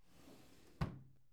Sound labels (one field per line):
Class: drawer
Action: closing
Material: wooden